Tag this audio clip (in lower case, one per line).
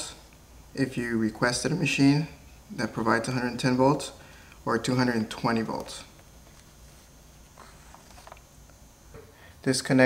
speech